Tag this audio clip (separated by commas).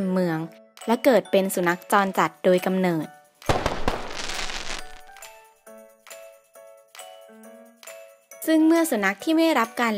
Music, Speech